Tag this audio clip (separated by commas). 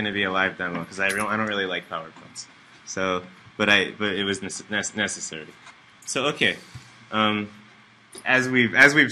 Speech